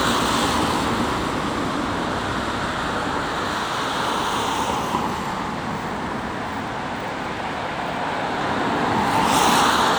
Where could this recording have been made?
on a street